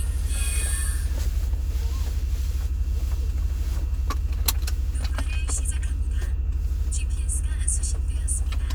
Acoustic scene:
car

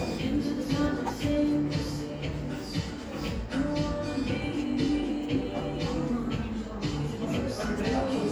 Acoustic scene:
cafe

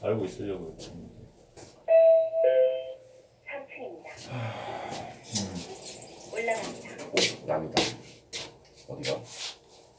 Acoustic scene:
elevator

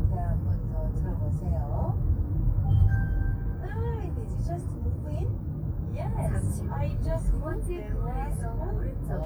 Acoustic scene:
car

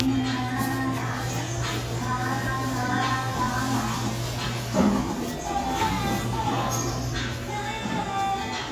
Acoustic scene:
cafe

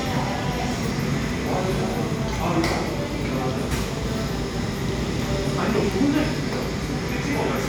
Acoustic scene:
cafe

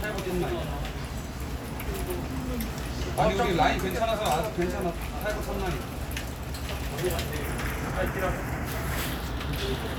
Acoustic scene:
crowded indoor space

